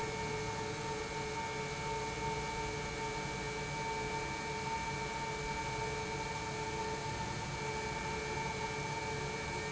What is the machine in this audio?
pump